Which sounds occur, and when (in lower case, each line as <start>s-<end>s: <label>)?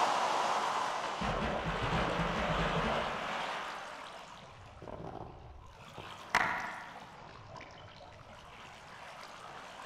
0.0s-9.8s: video game sound
0.0s-9.8s: water
1.2s-3.0s: sound effect
4.8s-5.3s: sound effect
5.9s-6.0s: sound effect
6.3s-6.7s: sound effect